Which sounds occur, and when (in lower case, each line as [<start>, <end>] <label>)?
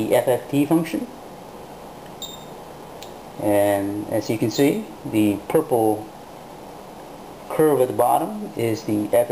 [0.00, 1.06] male speech
[0.00, 9.31] mechanisms
[2.17, 2.50] bleep
[2.94, 3.10] generic impact sounds
[3.38, 6.11] male speech
[7.47, 9.31] male speech